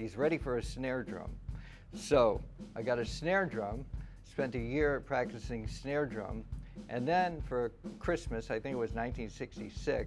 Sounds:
music
speech
funk

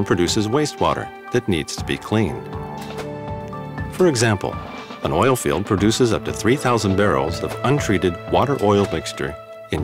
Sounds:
speech
music

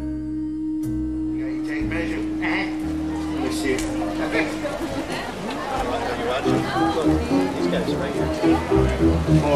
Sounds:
speech
music

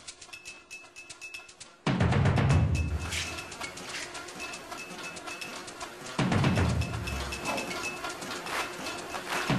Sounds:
music

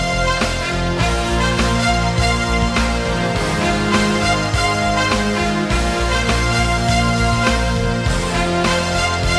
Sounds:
music

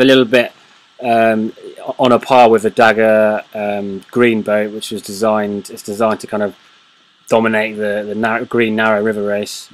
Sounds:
speech

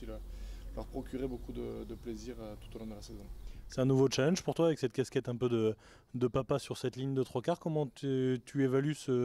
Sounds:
speech

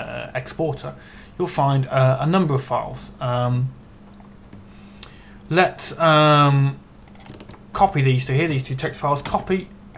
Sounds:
speech

